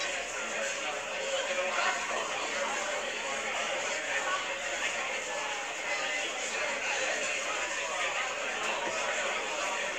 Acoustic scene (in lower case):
crowded indoor space